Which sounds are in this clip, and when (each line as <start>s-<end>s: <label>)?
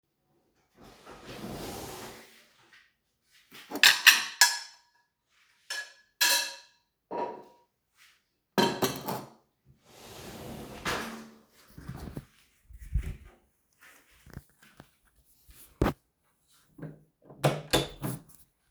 0.8s-2.9s: wardrobe or drawer
3.6s-5.0s: cutlery and dishes
5.7s-6.1s: cutlery and dishes
6.2s-7.0s: cutlery and dishes
7.1s-7.8s: cutlery and dishes
8.6s-9.5s: cutlery and dishes
9.8s-11.8s: wardrobe or drawer
17.3s-18.5s: door